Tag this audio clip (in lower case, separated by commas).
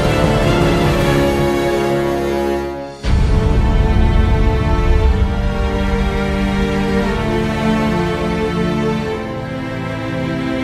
tender music, soundtrack music, music